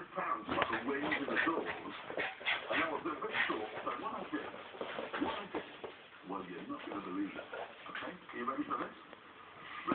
A man gives a speech as a small dog is whimpering